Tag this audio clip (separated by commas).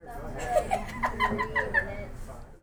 Human voice, Laughter